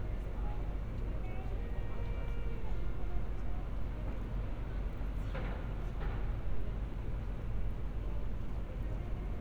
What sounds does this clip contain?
non-machinery impact, music from a fixed source, person or small group talking